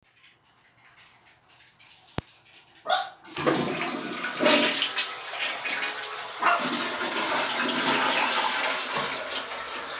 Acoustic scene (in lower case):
restroom